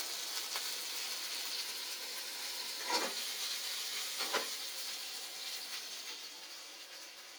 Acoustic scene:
kitchen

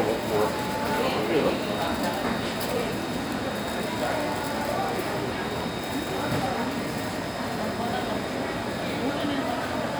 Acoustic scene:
crowded indoor space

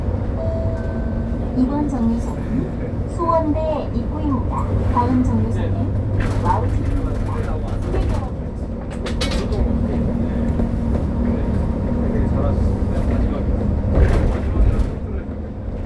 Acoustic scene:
bus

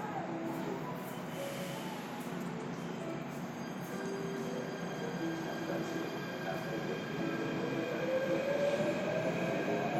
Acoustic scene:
subway station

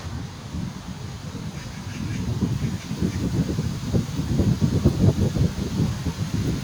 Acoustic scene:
park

